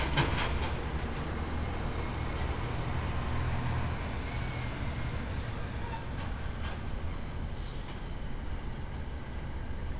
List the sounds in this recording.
large-sounding engine